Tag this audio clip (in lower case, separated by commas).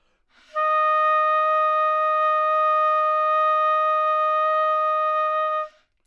music, musical instrument, woodwind instrument